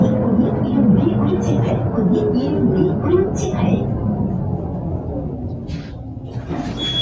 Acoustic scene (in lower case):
bus